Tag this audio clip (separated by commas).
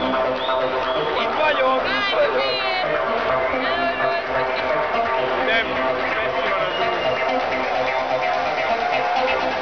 Music, Speech, Crowd